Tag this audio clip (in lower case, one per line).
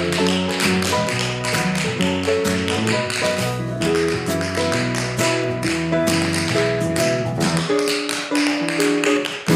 tap dancing